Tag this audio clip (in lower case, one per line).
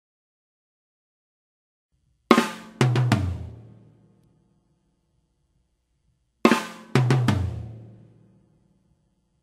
music
bass drum
musical instrument
hi-hat
cymbal
drum
percussion
drum kit
snare drum